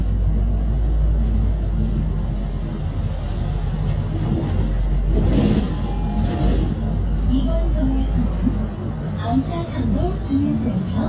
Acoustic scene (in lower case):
bus